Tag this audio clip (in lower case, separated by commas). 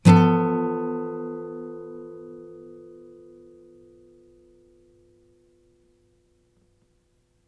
acoustic guitar, musical instrument, music, guitar, plucked string instrument, strum